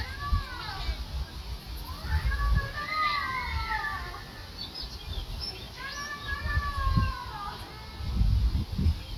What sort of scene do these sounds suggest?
park